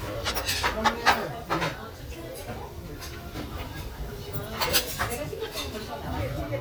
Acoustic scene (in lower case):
restaurant